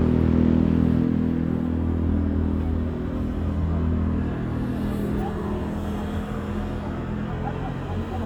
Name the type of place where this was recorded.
street